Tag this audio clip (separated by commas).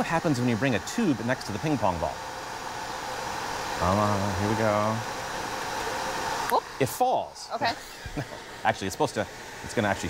Speech, Ping